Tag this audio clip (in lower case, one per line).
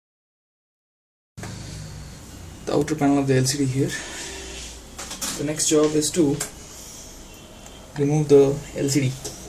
inside a small room
speech